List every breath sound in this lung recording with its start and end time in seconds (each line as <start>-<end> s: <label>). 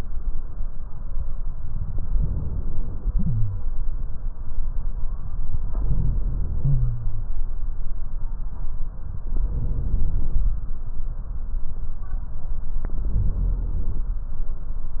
2.11-3.61 s: inhalation
3.09-3.61 s: wheeze
5.68-7.30 s: inhalation
6.57-7.30 s: wheeze
9.22-10.50 s: inhalation
12.84-14.11 s: inhalation